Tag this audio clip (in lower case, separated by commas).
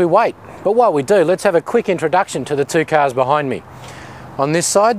speech